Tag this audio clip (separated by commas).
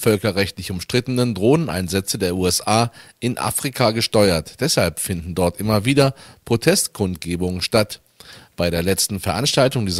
Speech